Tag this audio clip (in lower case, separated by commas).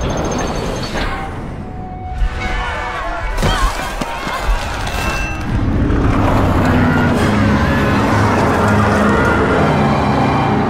music, inside a public space, speech